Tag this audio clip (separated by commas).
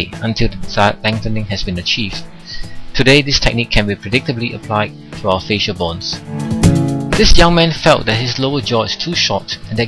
Music, Speech